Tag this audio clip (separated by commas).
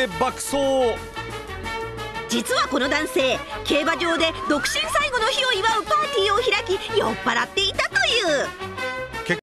Speech, Music